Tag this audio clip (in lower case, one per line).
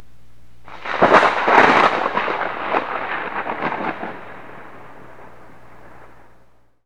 thunder
thunderstorm